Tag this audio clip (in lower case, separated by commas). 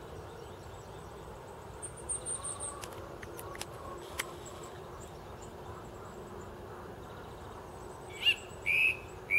wood thrush calling